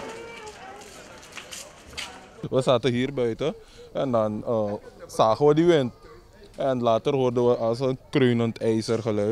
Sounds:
Speech

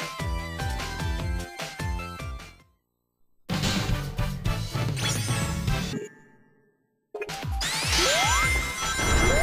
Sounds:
Music

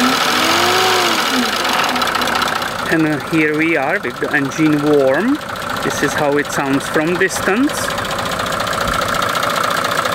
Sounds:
Speech, Engine

